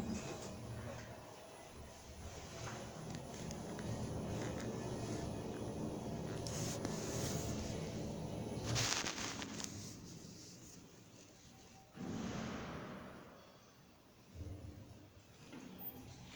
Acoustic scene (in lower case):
elevator